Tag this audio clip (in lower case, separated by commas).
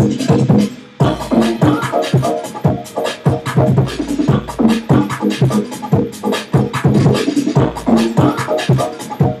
electronic music, music, scratching (performance technique)